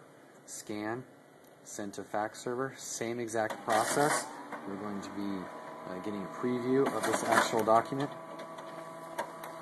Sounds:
speech
inside a small room

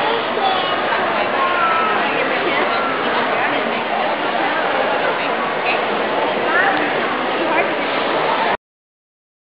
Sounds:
speech

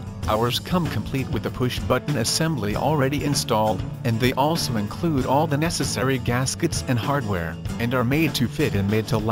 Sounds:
music
speech

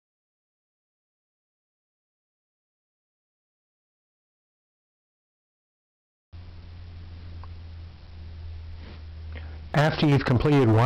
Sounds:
speech

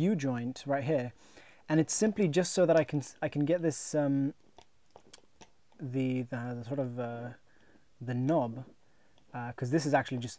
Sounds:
inside a small room
speech

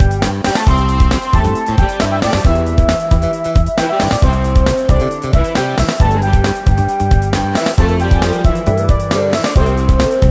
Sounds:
exciting music
music

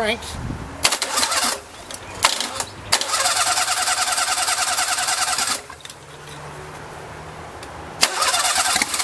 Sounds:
speech

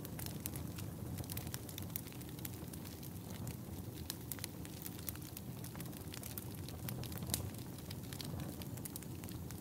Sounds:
fire crackling

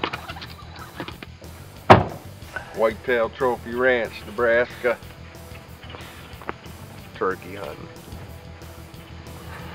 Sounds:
speech
music

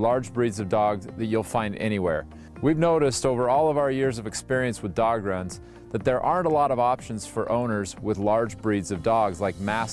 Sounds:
speech
music

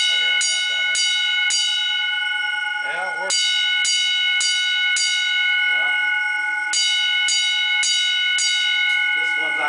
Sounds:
speech

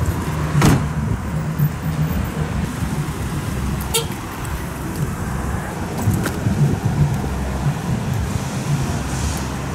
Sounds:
car
roadway noise

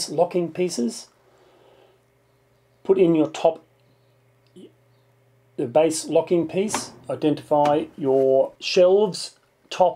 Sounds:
speech

